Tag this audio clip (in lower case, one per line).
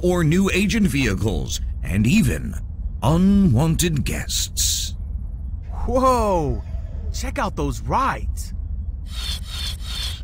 speech